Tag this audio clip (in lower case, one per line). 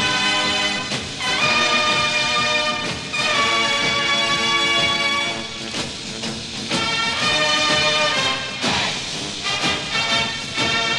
people marching